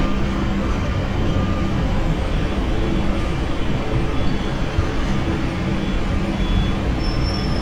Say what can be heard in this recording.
medium-sounding engine, reverse beeper